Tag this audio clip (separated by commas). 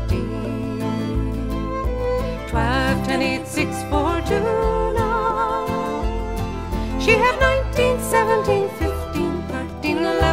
Music